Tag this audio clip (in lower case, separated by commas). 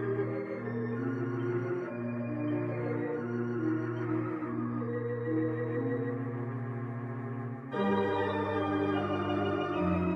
organ, electronic organ, playing electronic organ